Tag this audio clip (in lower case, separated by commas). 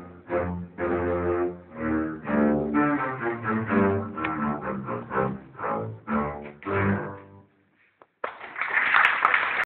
double bass, musical instrument, music, playing double bass